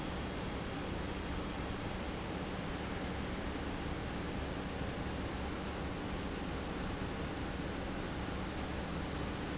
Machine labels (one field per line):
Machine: pump